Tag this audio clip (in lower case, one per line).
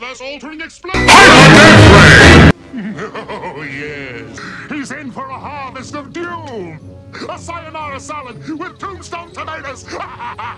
music
speech